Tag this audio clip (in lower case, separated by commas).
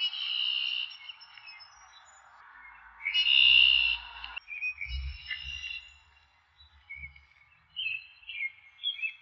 bird song, wild animals, chirp, bird, animal